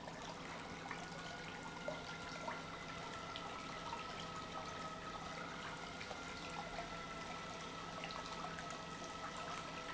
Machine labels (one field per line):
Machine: pump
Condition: normal